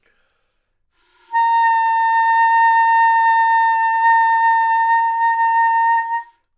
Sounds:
Musical instrument, Music, Wind instrument

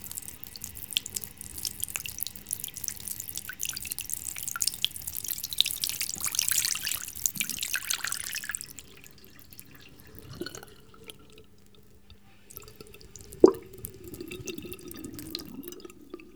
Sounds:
Liquid, Sink (filling or washing), home sounds, dribble, Pour

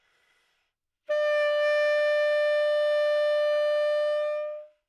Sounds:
woodwind instrument, Musical instrument, Music

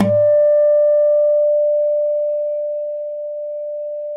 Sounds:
Music, Guitar, Musical instrument, Plucked string instrument, Acoustic guitar

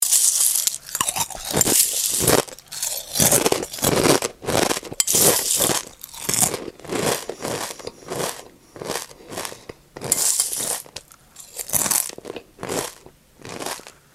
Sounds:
Chewing

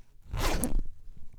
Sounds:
home sounds, Zipper (clothing)

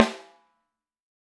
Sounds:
Percussion, Snare drum, Musical instrument, Drum, Music

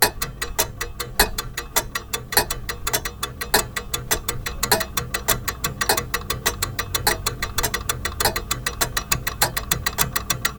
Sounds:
Tick

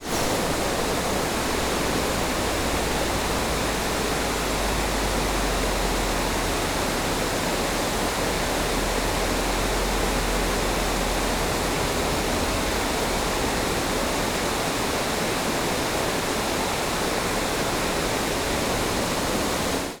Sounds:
Water

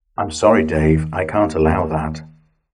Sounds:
Speech, Human voice

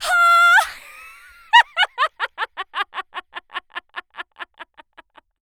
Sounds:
Laughter, Human voice

